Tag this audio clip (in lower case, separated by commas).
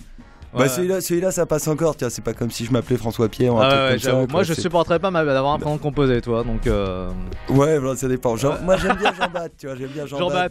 music, speech